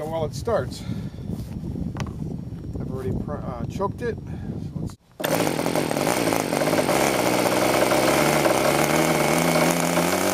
A man speaking with an engine starting